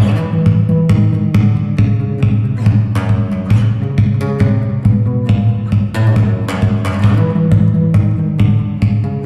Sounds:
Plucked string instrument, Music, Guitar, Musical instrument

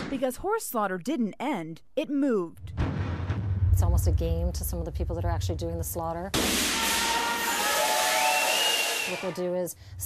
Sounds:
Speech

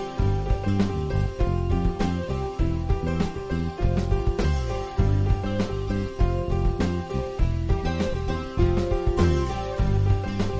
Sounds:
Music

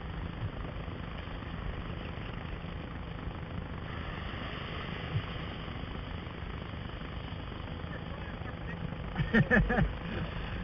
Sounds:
Vehicle, Water vehicle

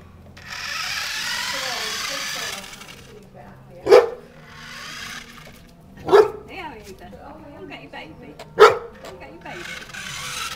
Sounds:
Car, Speech

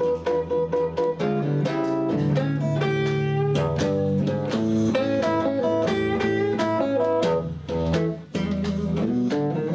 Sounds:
Jazz, Music, Steel guitar, Blues

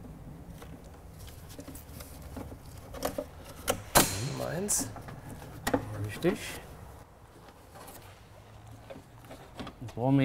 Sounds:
Speech

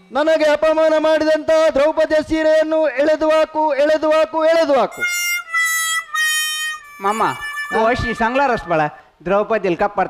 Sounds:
Speech, inside a large room or hall

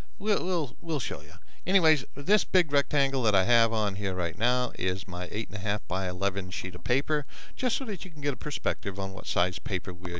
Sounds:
Speech

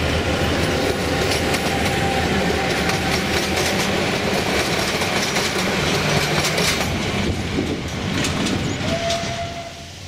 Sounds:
Train, train wagon, Clickety-clack, Rail transport, Train horn

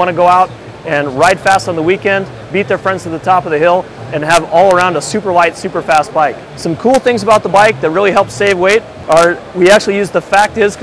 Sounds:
Speech

